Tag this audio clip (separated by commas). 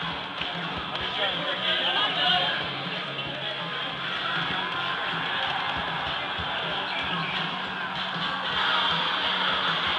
Music, Strum, Speech, Plucked string instrument, Guitar, Electric guitar, Musical instrument